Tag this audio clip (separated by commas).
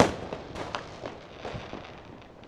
Explosion, Fireworks